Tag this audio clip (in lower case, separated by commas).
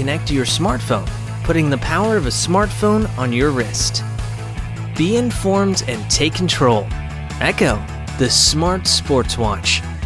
music, speech